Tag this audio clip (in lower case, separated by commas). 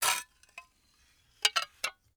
dishes, pots and pans, glass, domestic sounds